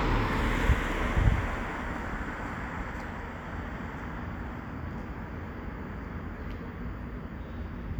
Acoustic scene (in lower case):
street